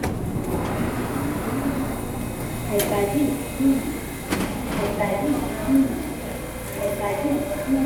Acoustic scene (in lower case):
subway station